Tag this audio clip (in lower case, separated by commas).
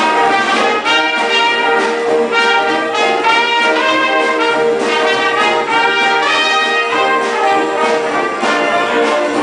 music